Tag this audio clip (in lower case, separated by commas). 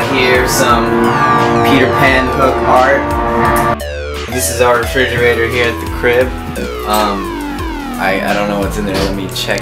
music, speech